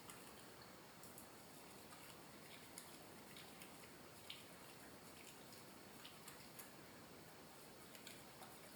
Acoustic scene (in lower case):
restroom